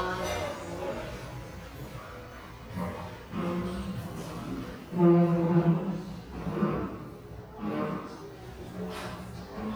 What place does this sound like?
cafe